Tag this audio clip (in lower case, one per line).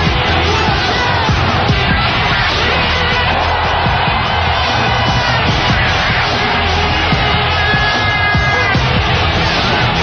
music